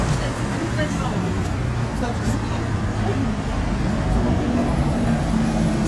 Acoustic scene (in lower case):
street